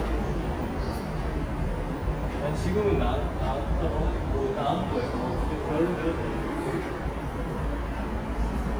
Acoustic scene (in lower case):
subway station